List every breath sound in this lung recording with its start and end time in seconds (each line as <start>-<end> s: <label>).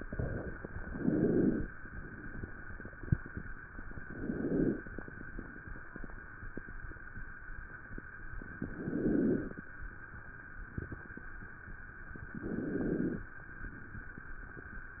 0.78-1.65 s: inhalation
3.98-4.86 s: inhalation
8.63-9.60 s: inhalation
12.39-13.36 s: inhalation